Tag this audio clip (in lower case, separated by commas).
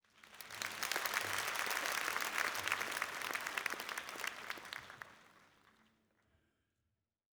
applause, human group actions